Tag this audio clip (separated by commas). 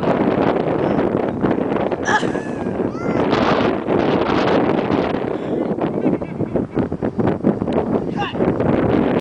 Speech